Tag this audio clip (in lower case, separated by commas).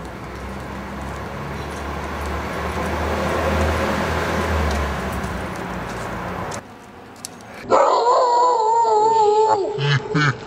animal, outside, urban or man-made, bark, bow-wow